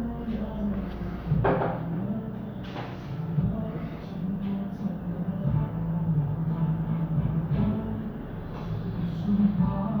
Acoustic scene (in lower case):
cafe